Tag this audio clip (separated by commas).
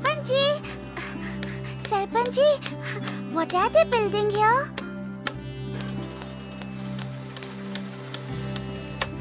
Speech, Music